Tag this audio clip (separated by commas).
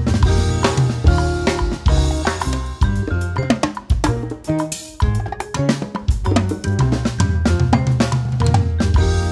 playing timbales